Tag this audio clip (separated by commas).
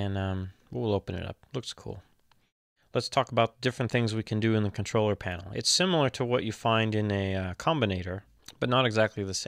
Speech